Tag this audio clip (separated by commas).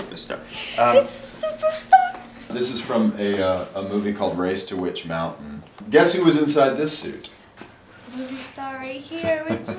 Speech